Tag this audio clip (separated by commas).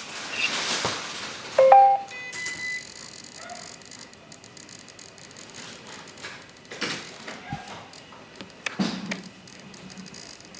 inside a small room